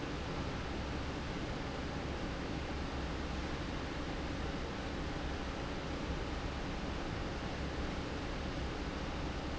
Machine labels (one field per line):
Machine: fan